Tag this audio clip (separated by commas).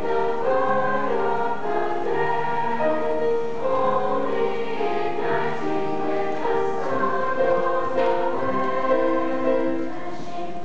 Music, Female singing, Choir